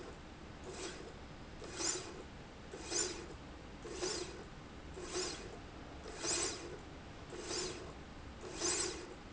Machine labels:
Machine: slide rail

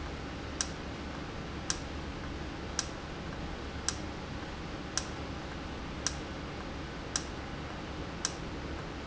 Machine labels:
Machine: valve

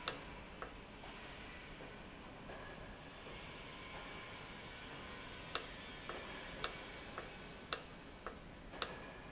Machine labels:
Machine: valve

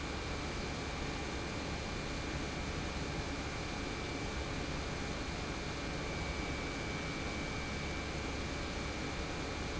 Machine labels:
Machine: pump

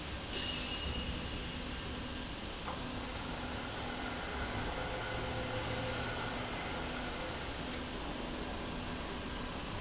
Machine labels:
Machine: slide rail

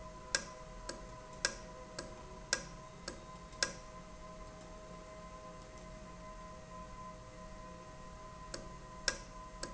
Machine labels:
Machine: valve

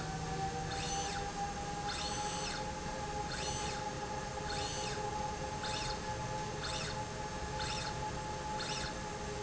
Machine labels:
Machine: slide rail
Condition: normal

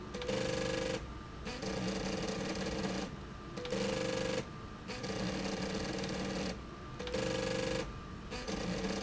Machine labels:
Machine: slide rail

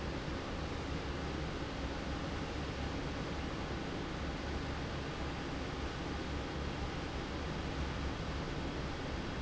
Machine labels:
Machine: fan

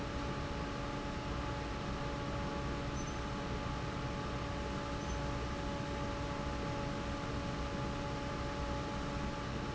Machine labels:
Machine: fan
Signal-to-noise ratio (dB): -6 dB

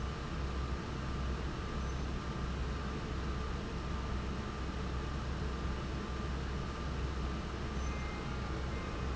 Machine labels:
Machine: fan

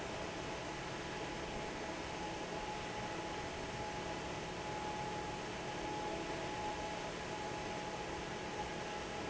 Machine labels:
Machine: fan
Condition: normal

